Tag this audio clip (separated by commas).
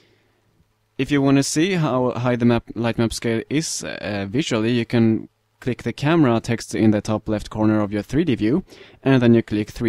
Speech